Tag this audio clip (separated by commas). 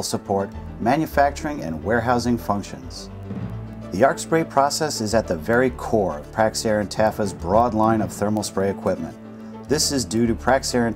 Music, Speech